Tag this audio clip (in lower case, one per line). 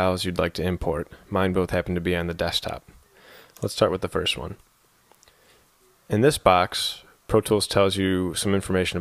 speech